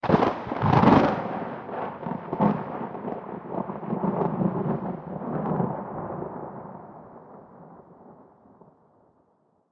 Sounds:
thunder, thunderstorm

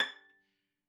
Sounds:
music, bowed string instrument, musical instrument

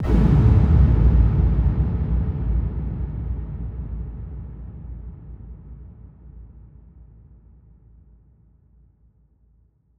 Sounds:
explosion

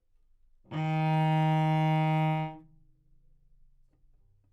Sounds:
bowed string instrument, music, musical instrument

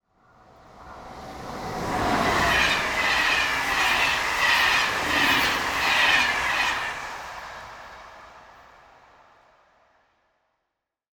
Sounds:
vehicle, train, rail transport

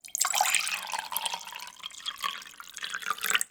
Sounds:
liquid, fill (with liquid)

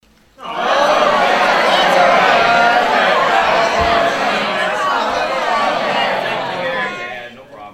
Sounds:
crowd, human group actions

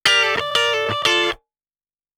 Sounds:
electric guitar, guitar, plucked string instrument, musical instrument, music

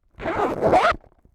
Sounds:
home sounds, zipper (clothing)

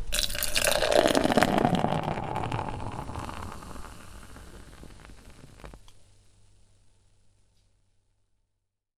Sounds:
liquid

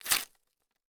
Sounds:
tearing

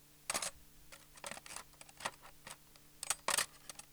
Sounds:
silverware, domestic sounds

